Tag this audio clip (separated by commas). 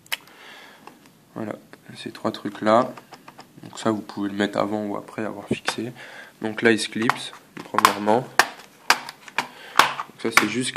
Speech